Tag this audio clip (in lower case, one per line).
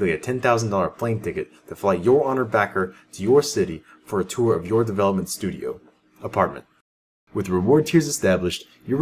speech